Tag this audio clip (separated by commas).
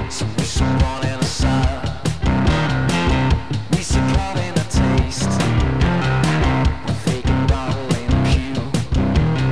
Music